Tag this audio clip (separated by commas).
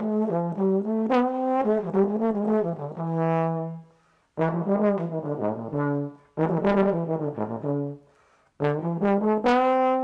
playing trombone